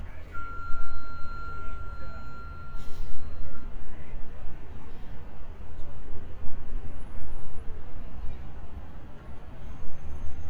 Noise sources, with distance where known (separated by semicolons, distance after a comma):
engine of unclear size; unidentified alert signal